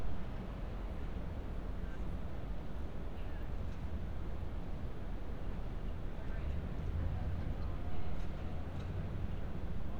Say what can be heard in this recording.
person or small group talking